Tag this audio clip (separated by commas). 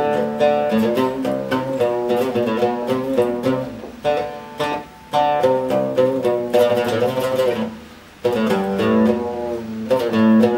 Music, Plucked string instrument, Ukulele, Mandolin, Musical instrument